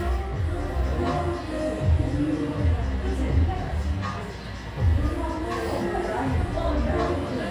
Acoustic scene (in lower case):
cafe